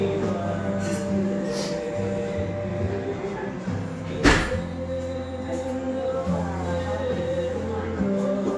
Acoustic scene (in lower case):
restaurant